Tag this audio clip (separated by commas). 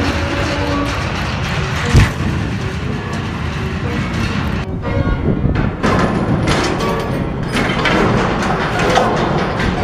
Music